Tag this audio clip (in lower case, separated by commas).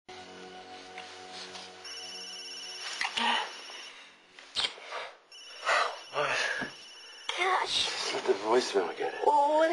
music, speech